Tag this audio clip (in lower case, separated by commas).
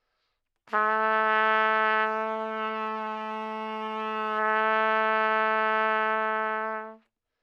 music, musical instrument, brass instrument, trumpet